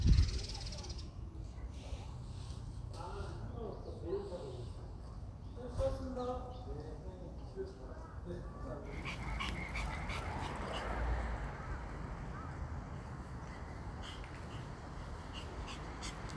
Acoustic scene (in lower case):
residential area